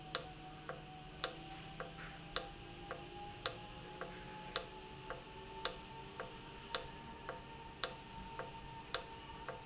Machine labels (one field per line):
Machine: valve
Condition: normal